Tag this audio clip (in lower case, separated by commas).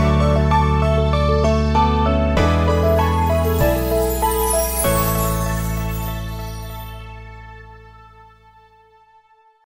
music